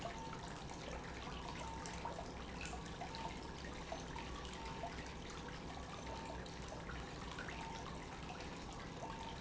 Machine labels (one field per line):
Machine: pump